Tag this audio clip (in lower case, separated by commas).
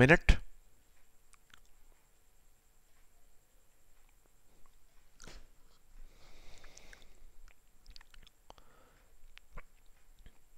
speech